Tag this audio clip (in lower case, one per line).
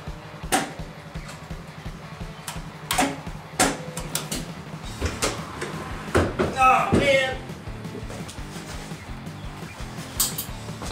speech
music